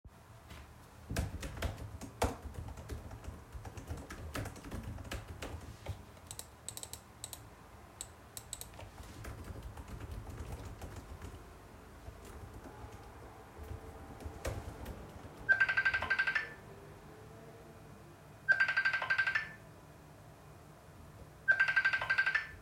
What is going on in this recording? I'm doing my homework with an open window, while I get a call from my friend.